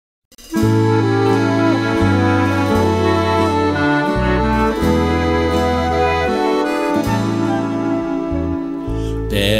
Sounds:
Tender music, Music

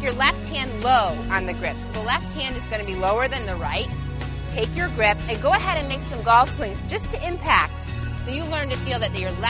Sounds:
Speech, Music

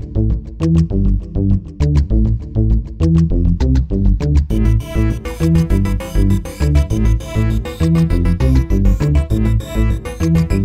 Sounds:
Music

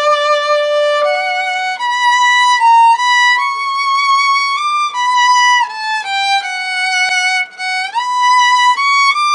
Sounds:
Violin, Musical instrument, Music

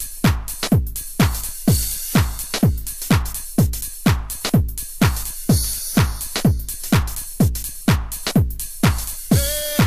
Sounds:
Music

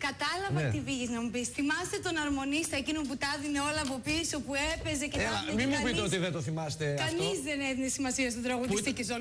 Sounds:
Speech

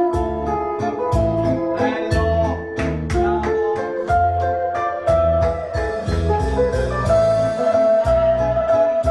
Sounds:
Musical instrument, Guitar, Music, Plucked string instrument, Strum, Acoustic guitar

